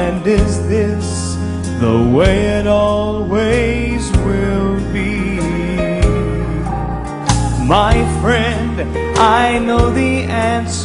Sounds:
music, tender music

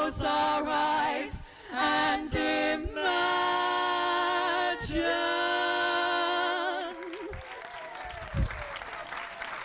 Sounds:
male singing, choir, female singing

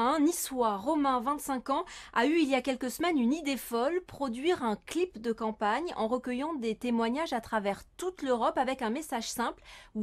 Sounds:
speech

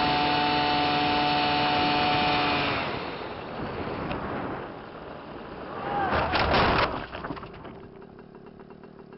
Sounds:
vehicle

